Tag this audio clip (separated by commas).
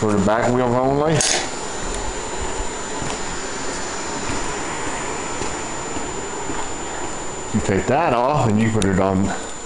Speech